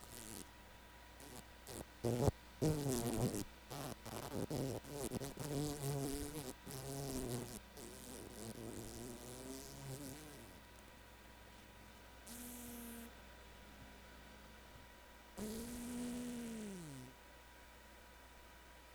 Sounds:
insect
wild animals
animal

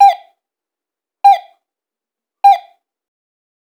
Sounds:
alarm
home sounds
door
doorbell

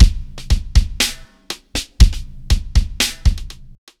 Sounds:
musical instrument
music
percussion
drum kit
drum

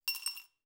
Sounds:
glass
coin (dropping)
home sounds

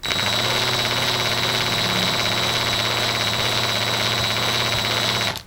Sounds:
tools

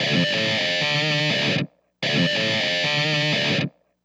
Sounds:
guitar
plucked string instrument
musical instrument
music

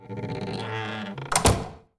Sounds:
door
home sounds
slam

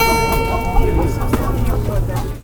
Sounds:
musical instrument
music
keyboard (musical)

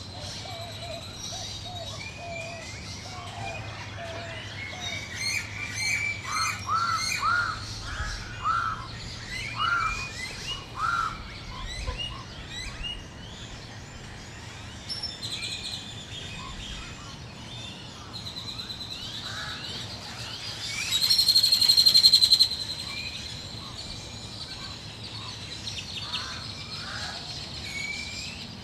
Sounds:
crow
animal
bird
wild animals

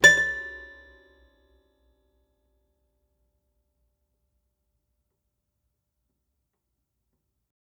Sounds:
music
keyboard (musical)
musical instrument
piano

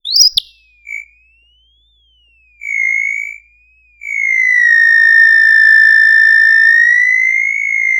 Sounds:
animal

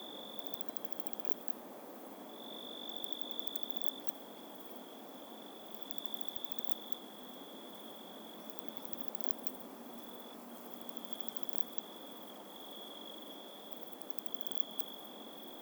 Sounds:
insect
cricket
wild animals
animal

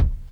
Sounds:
percussion
music
musical instrument
drum
bass drum

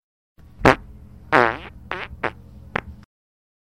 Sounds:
fart

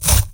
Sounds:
domestic sounds

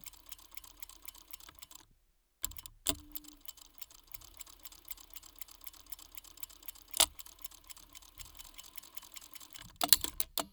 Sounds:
mechanisms

